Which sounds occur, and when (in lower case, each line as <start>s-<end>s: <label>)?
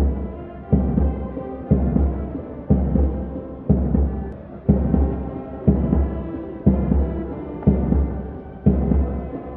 0.0s-9.5s: music